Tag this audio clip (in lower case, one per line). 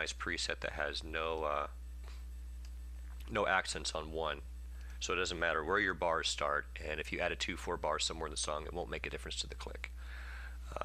speech